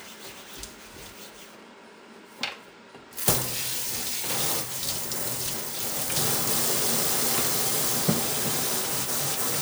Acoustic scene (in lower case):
kitchen